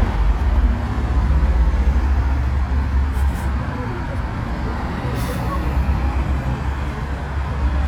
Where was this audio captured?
on a street